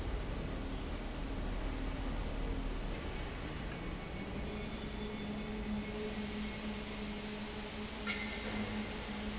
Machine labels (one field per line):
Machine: fan